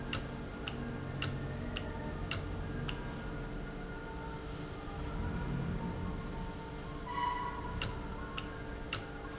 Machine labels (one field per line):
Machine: valve